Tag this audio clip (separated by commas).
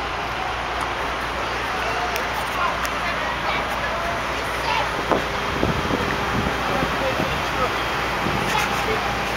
Speech